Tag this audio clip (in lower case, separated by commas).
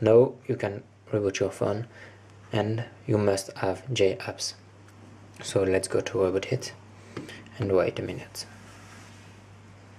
speech